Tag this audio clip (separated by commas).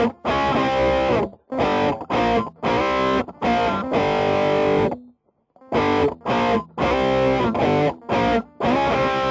Music